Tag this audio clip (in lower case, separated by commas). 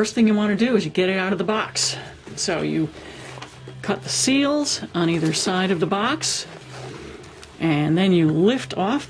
speech